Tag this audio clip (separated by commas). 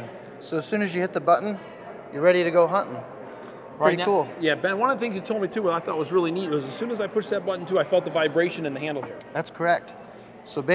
Speech